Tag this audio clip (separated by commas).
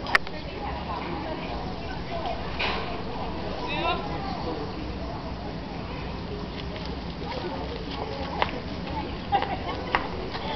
Speech